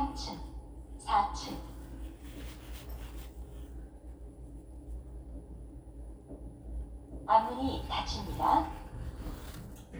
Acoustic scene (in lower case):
elevator